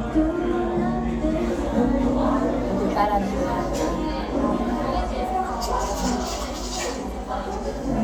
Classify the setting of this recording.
crowded indoor space